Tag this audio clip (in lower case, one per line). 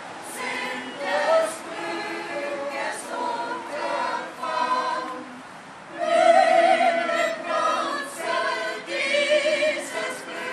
music